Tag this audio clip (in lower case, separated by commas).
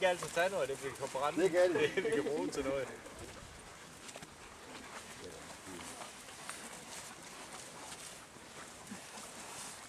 speech